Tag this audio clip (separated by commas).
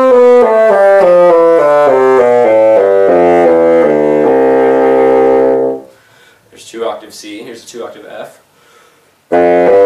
playing bassoon